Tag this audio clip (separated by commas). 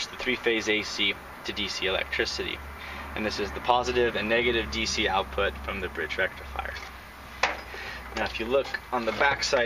Speech